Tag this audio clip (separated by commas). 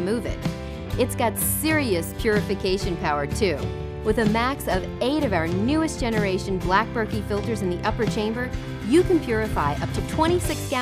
Speech, Music